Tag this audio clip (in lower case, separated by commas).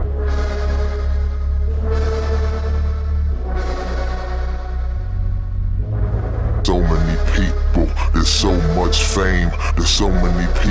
speech, music